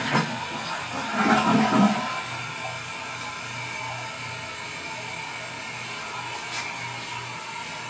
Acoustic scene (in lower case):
restroom